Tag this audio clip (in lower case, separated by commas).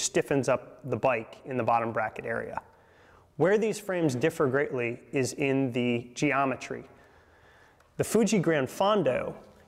speech